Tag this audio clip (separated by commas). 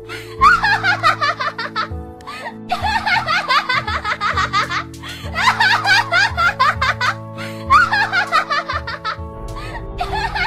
Music, people sniggering, Snicker